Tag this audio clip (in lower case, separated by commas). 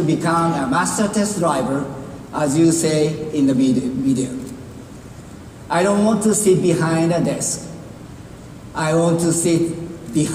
narration, speech, man speaking